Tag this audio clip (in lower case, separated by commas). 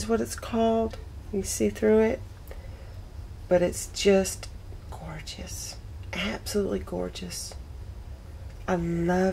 speech